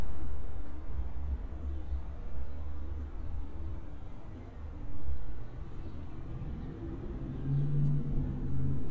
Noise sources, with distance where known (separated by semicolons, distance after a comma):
medium-sounding engine, far